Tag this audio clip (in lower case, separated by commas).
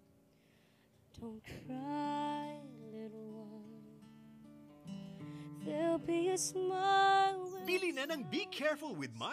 speech, music, lullaby